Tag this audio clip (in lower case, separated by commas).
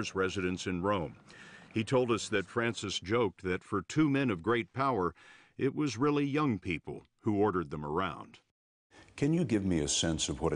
speech